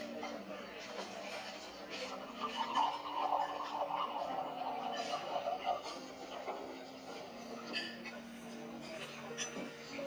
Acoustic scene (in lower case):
restaurant